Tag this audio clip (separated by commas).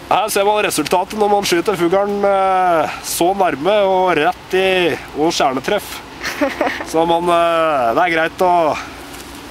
Speech